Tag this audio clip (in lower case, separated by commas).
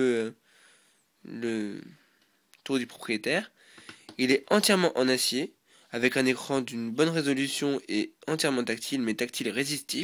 speech